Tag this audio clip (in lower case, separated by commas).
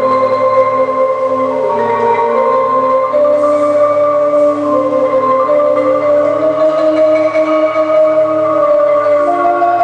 musical instrument, playing marimba, music, xylophone